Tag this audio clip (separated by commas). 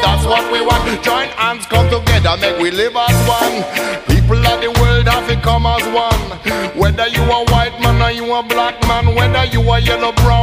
Music